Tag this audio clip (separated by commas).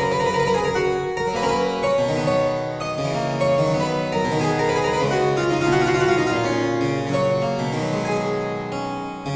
playing harpsichord